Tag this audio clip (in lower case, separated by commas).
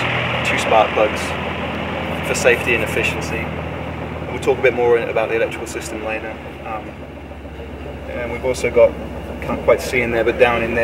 car engine idling